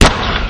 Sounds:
explosion

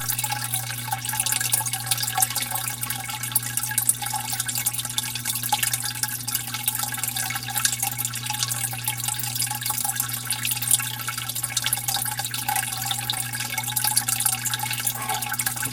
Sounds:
liquid
drip

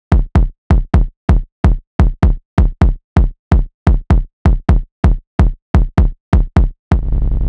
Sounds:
musical instrument
bass drum
drum
percussion
music

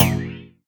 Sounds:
thump

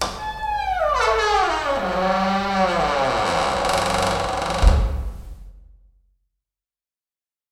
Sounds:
squeak

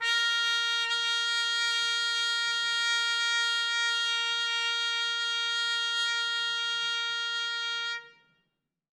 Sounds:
brass instrument
musical instrument
music
trumpet

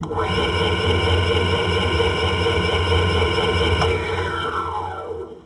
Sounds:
tools

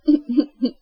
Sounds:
human voice
laughter

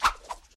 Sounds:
whoosh

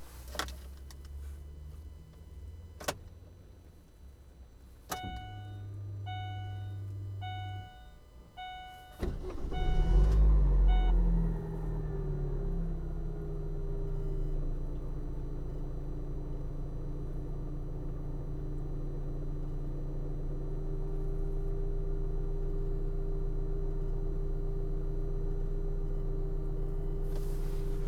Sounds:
idling
engine
engine starting
vehicle
motor vehicle (road)

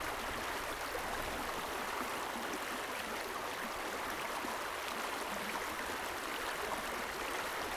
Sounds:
stream
water

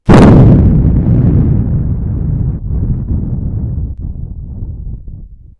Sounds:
thunder
thunderstorm

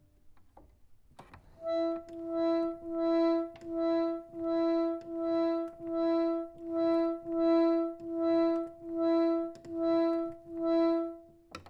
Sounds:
keyboard (musical)
organ
music
musical instrument

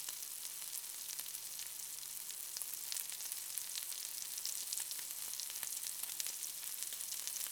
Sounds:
frying (food)
domestic sounds

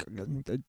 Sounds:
human voice
speech

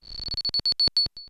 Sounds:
alarm

